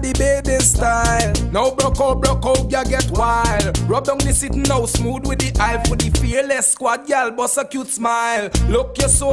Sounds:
music, music of africa

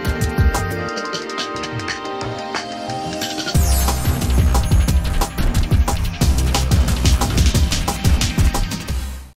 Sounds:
music

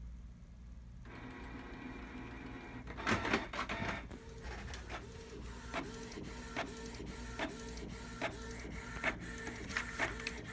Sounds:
printer printing

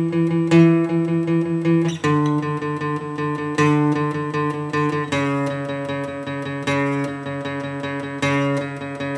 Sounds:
music

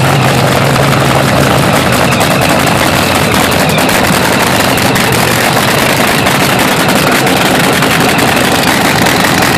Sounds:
vehicle, car

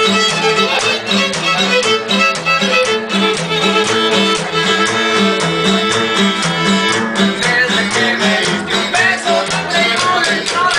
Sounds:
fiddle, musical instrument, music

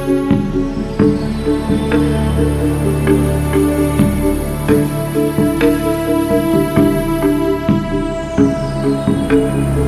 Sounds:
music

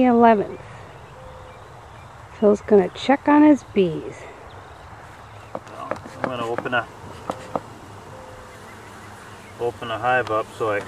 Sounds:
speech

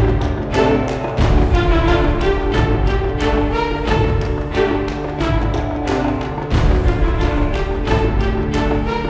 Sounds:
music, theme music

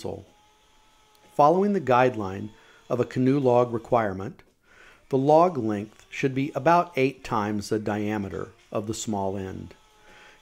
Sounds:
speech

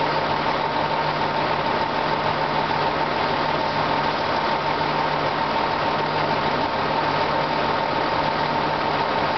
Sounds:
train, vehicle, rail transport, train wagon

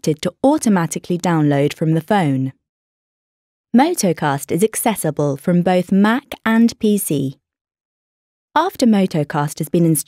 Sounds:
speech, inside a small room

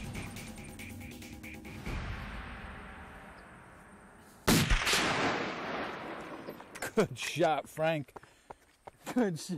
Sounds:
gunfire

